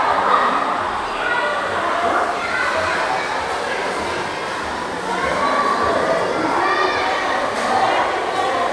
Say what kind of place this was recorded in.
crowded indoor space